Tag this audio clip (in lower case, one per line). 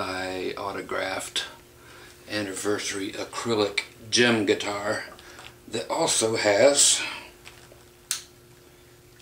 speech